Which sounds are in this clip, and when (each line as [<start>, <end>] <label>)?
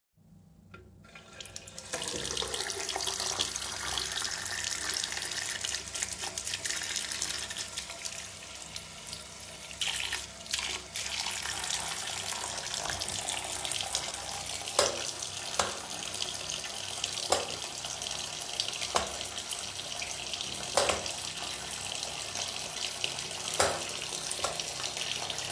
[1.30, 25.51] running water
[14.70, 15.22] light switch
[15.49, 15.81] light switch
[17.25, 17.52] light switch
[18.89, 19.11] light switch
[20.71, 21.11] light switch
[23.46, 23.88] light switch
[24.31, 24.58] light switch